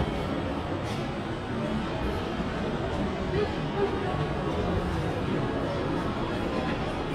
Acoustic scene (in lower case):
crowded indoor space